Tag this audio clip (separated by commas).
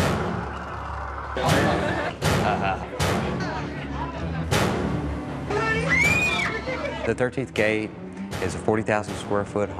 Speech, Music